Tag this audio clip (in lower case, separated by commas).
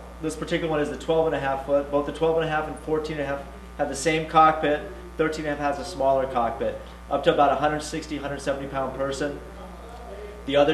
speech